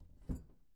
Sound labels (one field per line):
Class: cupboard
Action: closing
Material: wooden